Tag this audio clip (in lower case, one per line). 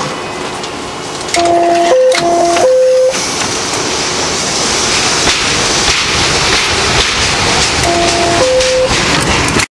sound effect